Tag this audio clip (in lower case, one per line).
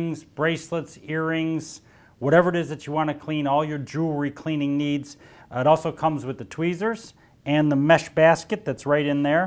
speech